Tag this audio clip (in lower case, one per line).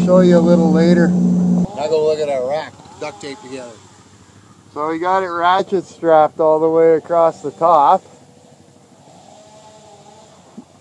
speech
outside, rural or natural